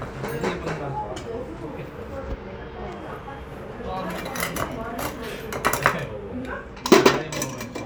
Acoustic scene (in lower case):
restaurant